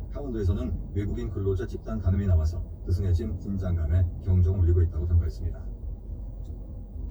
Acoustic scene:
car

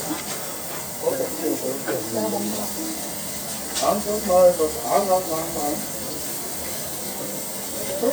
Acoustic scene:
restaurant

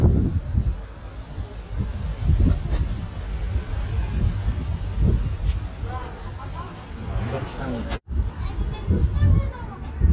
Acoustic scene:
residential area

